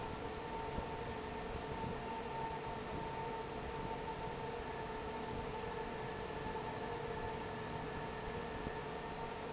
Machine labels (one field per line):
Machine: fan